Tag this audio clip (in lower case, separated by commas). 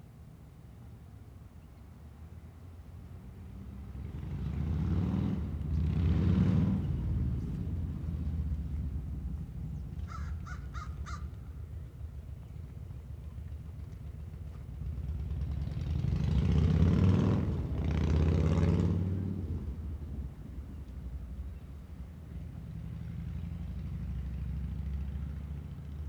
motorcycle, vehicle, motor vehicle (road)